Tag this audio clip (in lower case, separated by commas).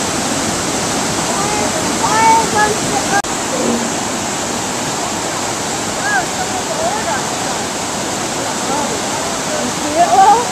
speech